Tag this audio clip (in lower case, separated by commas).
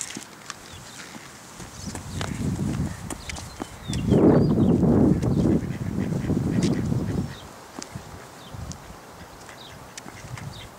duck, quack, animal